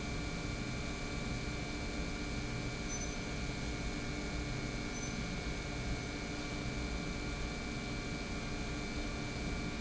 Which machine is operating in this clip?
pump